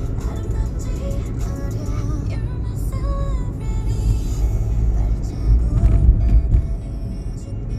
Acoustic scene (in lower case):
car